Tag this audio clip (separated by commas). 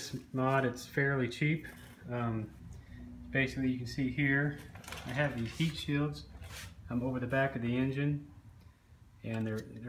Speech